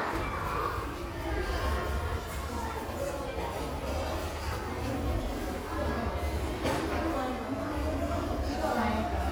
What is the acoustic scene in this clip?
restaurant